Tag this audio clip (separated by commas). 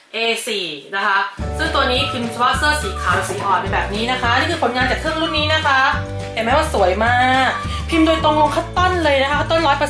Speech, Music